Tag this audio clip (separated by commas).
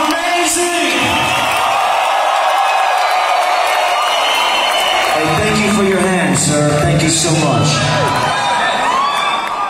Speech, inside a public space